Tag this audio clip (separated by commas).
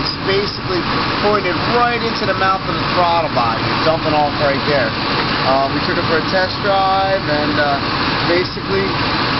Truck, Vehicle, Speech